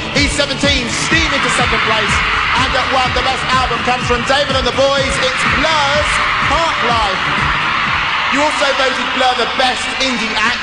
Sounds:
Music, Speech

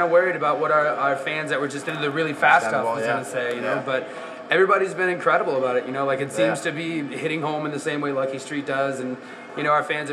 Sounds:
Speech, Music

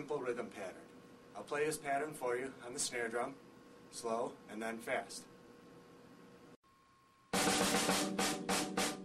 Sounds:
Music, Speech

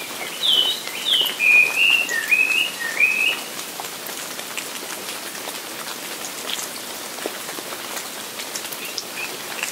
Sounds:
Raindrop, raining, Rain on surface

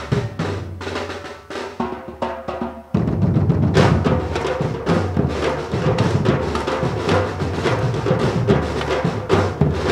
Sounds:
Music, Percussion

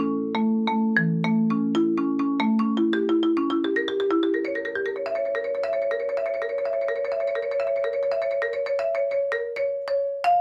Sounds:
xylophone, Vibraphone, Music

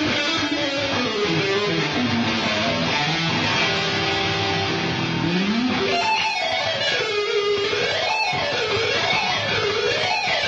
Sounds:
Strum, Electric guitar, Guitar, Music, Plucked string instrument, Musical instrument

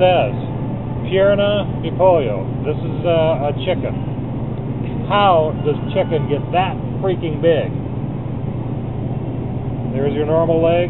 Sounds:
Speech

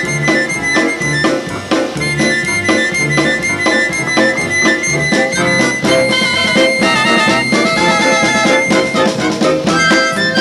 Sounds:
Blues, Music, Musical instrument

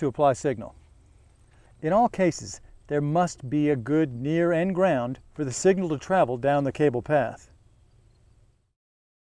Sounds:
Speech

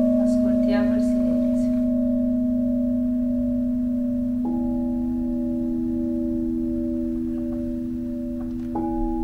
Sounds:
Singing bowl, Speech

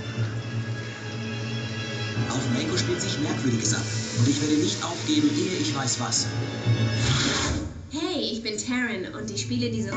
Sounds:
Speech, Music

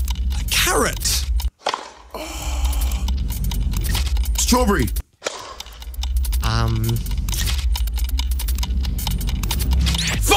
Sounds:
inside a large room or hall, Speech

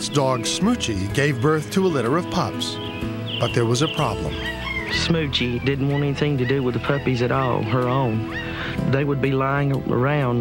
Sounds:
Music, Speech, Animal, Domestic animals

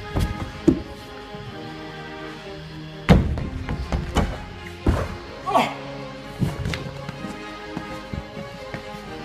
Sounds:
Speech, Music

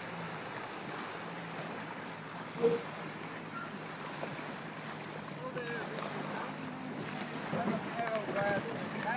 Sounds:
Motorboat, surf, Water vehicle, Vehicle, Speech

